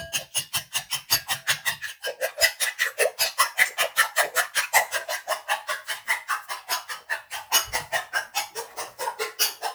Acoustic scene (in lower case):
kitchen